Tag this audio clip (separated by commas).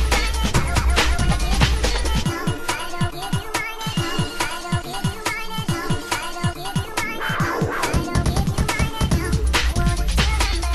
Music, Electronic music